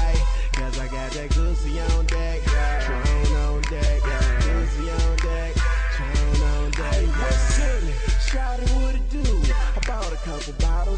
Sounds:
music

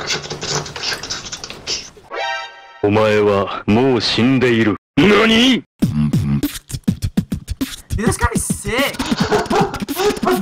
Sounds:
beat boxing

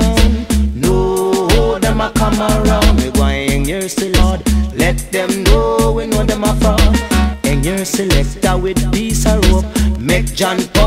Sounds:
music

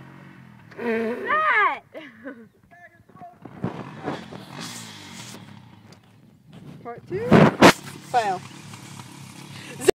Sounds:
vehicle
speech

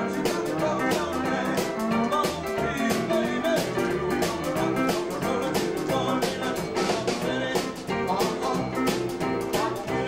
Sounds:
violin
musical instrument
music

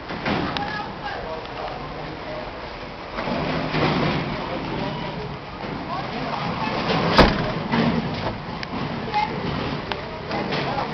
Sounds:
door slamming

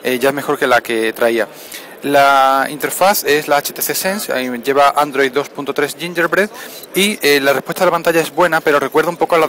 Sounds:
speech

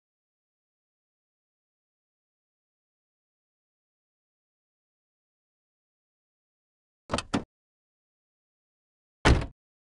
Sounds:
opening or closing car doors

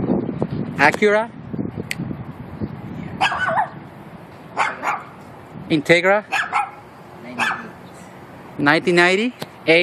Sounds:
bow-wow

